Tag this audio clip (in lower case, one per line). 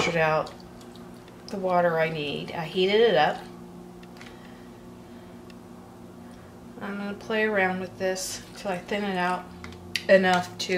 speech